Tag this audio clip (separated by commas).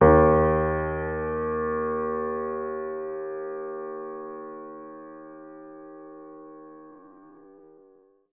Piano, Keyboard (musical), Musical instrument, Music